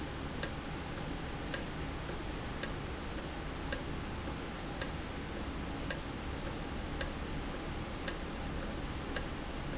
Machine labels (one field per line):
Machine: valve